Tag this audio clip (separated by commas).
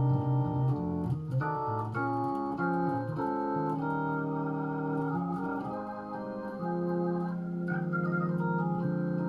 Organ, Musical instrument, Electric piano, Music, Keyboard (musical), Piano